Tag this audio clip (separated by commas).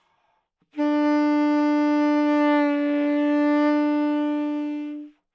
Wind instrument, Musical instrument, Music